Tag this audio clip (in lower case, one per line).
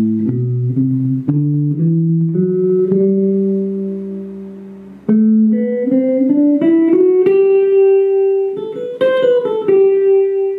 musical instrument
acoustic guitar
music
plucked string instrument
guitar